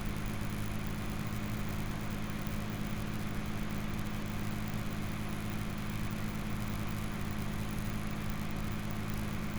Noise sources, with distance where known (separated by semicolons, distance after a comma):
engine of unclear size